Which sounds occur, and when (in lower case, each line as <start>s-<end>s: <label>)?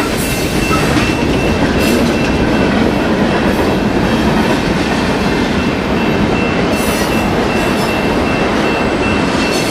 0.0s-9.7s: train
0.2s-0.8s: bell
0.9s-1.6s: bell
1.8s-1.9s: bell
2.1s-2.3s: bell
2.5s-2.7s: bell
2.9s-3.1s: bell
3.3s-4.3s: bell
4.4s-4.6s: bell
4.8s-5.0s: bell
5.1s-5.4s: bell
5.6s-5.8s: bell
5.9s-6.6s: bell
6.7s-7.3s: bell
7.5s-8.1s: bell
8.3s-8.4s: bell
8.6s-9.3s: bell
9.4s-9.7s: bell